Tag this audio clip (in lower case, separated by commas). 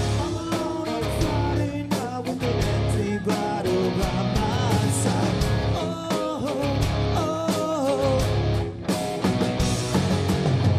music